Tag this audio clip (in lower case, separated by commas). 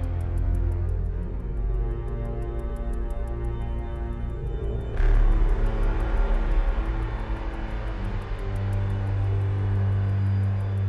music